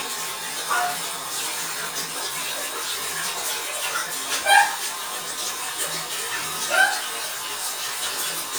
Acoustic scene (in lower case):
restroom